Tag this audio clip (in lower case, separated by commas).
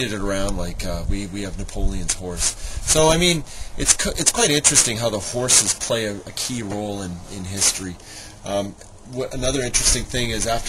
speech